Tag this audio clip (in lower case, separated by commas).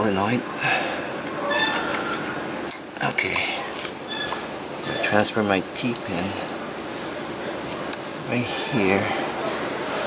speech, inside a large room or hall